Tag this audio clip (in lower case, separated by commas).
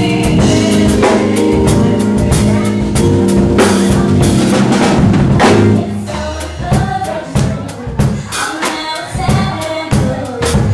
music, speech, female singing